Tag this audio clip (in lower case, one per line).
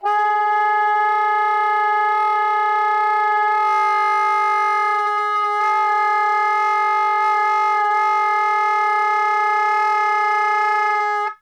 music
musical instrument
wind instrument